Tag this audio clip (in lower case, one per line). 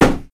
home sounds
knock
wood
door